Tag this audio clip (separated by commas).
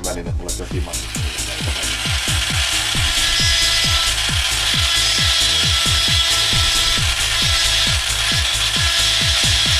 Music, Speech